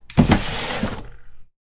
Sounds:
drawer open or close
domestic sounds

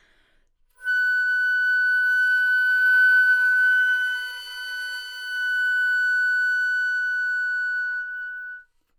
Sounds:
music
musical instrument
woodwind instrument

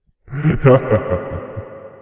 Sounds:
laughter
human voice

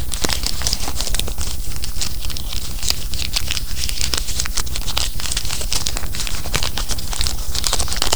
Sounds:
crumpling

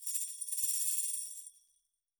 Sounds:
musical instrument
tambourine
music
percussion

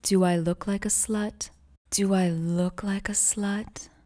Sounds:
human voice
speech
female speech

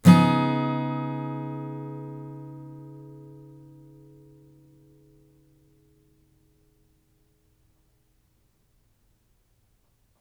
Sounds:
acoustic guitar
strum
music
musical instrument
guitar
plucked string instrument

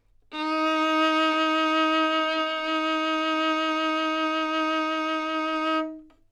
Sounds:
music
bowed string instrument
musical instrument

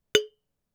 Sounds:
chink
glass

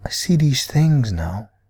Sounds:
speech
man speaking
human voice

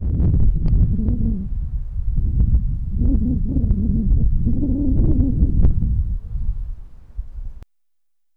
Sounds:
wind

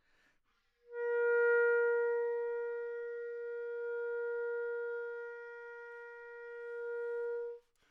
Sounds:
musical instrument
wind instrument
music

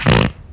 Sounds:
fart

